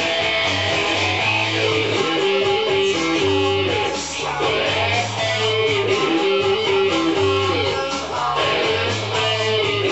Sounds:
playing bass guitar, musical instrument, strum, bass guitar, music, plucked string instrument, guitar

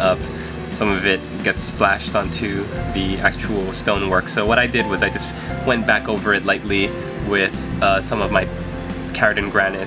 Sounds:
music, speech

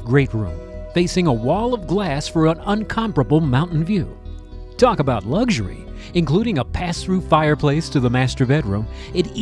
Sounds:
speech, music

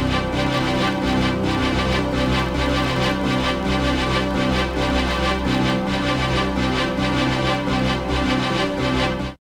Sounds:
music

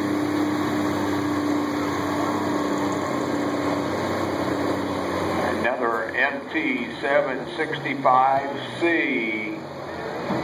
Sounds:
speech

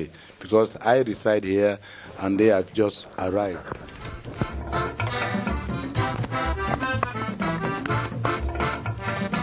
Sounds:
musical instrument, speech, drum, music

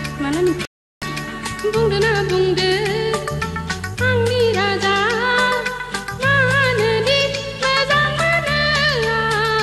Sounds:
music

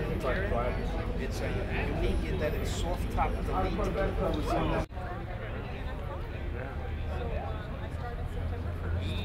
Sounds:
speech

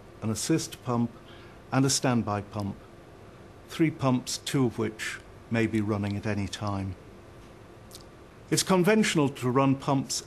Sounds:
speech

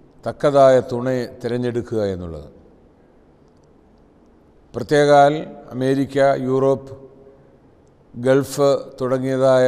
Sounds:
speech, male speech

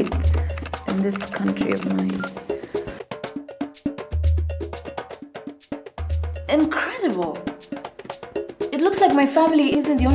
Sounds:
wood block

